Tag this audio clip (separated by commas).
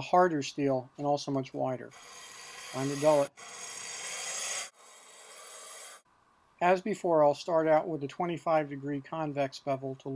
Filing (rasp)